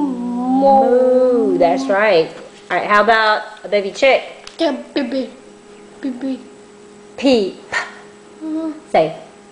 Women speaking followed by children speaking